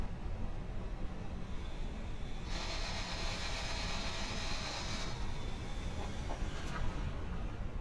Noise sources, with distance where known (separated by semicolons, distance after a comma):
jackhammer, near